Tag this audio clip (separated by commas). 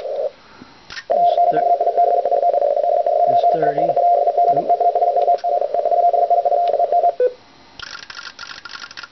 Speech, inside a small room, Radio